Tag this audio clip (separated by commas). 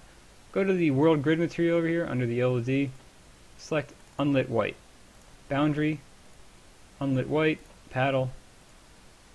Clicking, Speech